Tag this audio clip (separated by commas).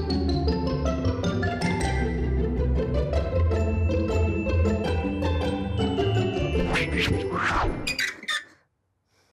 inside a small room, Music